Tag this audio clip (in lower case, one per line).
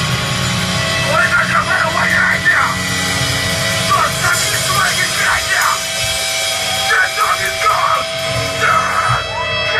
speech